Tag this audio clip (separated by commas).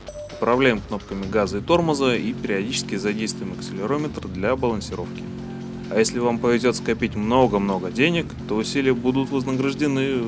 Speech, Music